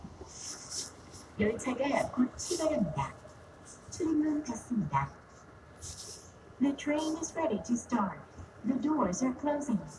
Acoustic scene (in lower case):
subway train